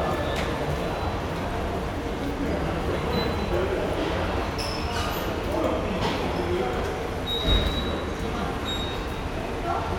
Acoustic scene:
subway station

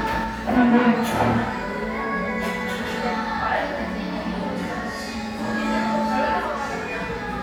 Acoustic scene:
crowded indoor space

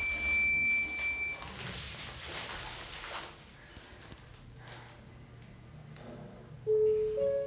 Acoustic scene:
elevator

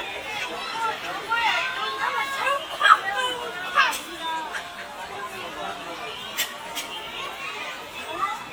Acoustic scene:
park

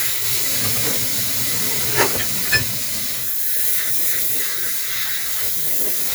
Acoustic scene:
kitchen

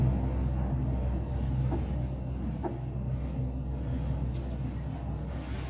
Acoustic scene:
elevator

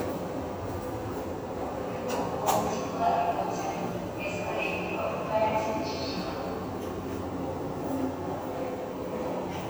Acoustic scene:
subway station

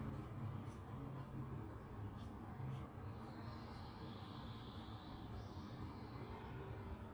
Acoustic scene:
residential area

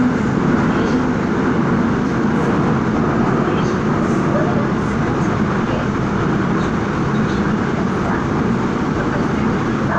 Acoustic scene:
subway train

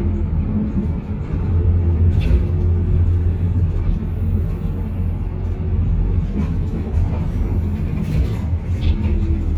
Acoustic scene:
bus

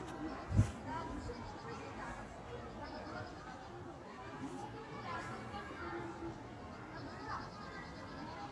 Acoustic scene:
park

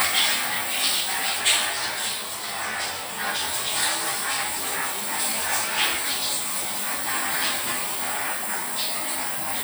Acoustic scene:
restroom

